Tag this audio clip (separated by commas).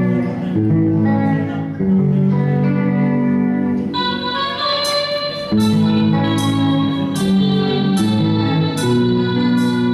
Acoustic guitar, Music, Musical instrument